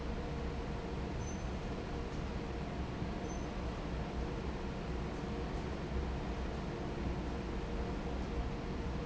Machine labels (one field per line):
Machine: fan